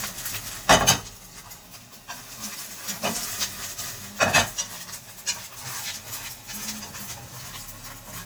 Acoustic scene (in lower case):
kitchen